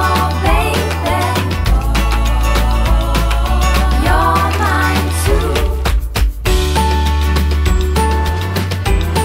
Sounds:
music

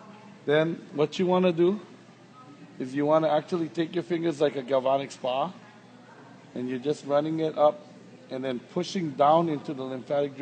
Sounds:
speech

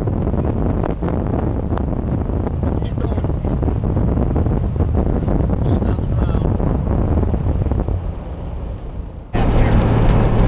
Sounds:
speech, vehicle

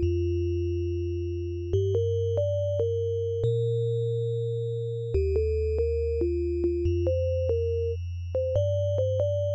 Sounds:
music

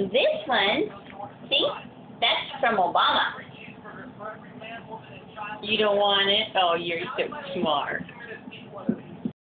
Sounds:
speech

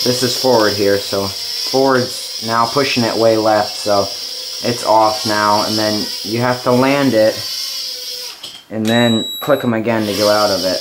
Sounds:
inside a large room or hall, speech

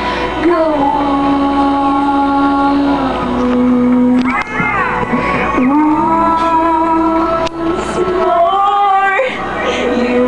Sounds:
female singing, music

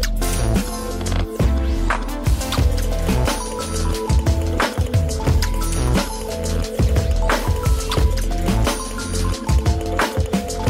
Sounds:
music

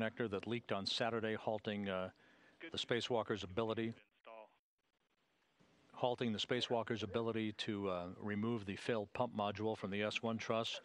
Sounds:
speech

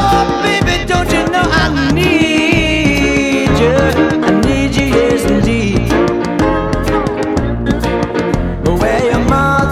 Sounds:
swing music, music

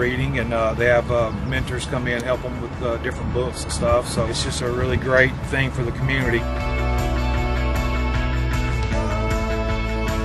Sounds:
music, speech

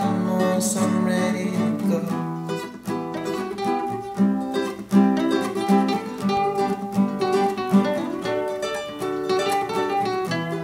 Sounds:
guitar, music, singing, musical instrument, acoustic guitar, ukulele, plucked string instrument

